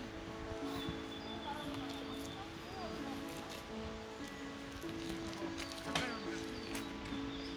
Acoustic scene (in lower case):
park